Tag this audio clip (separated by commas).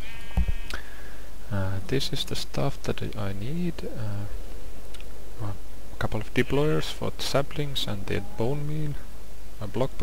Speech